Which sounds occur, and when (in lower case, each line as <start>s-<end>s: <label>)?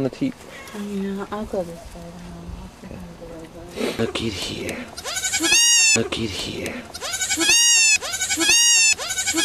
0.0s-0.3s: male speech
0.0s-6.8s: conversation
0.0s-9.4s: mechanisms
0.5s-0.9s: bleat
0.6s-0.7s: tick
0.7s-2.6s: female speech
1.9s-2.2s: generic impact sounds
2.8s-3.7s: female speech
3.4s-3.5s: generic impact sounds
3.7s-4.1s: animal
4.0s-4.9s: male speech
4.6s-4.7s: tick
5.0s-6.0s: bleat
5.9s-6.7s: male speech
6.6s-6.7s: tick
6.9s-9.4s: bleat